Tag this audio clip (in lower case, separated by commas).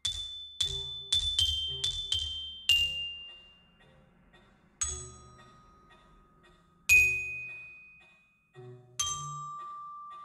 playing glockenspiel